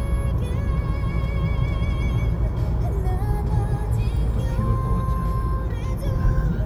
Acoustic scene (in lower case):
car